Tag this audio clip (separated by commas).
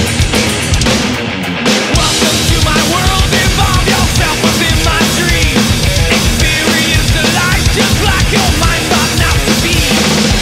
playing bass drum